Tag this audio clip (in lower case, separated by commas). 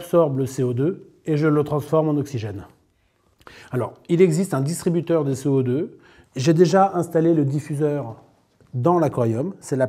speech